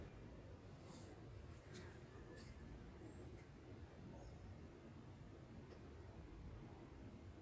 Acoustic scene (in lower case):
park